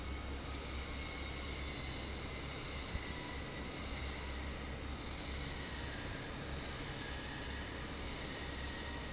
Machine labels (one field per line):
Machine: fan